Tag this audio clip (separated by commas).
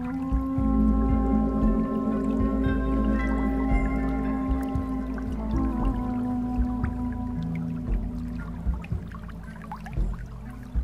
Music